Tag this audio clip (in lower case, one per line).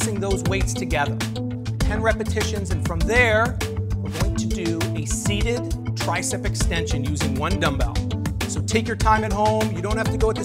music
speech